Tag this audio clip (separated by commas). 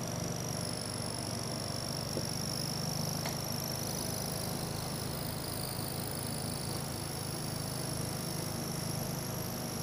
Wind